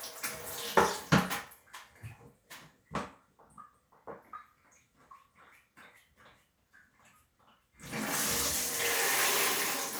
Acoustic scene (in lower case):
restroom